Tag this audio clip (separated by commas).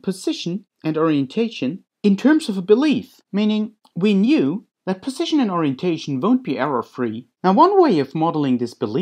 Speech